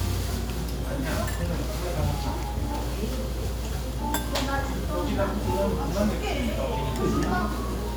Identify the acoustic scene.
restaurant